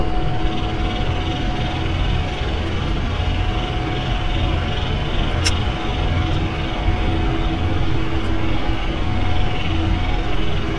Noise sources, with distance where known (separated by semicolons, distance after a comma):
jackhammer, far